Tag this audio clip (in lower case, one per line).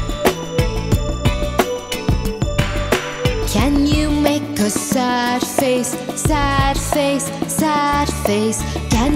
music
singing
music for children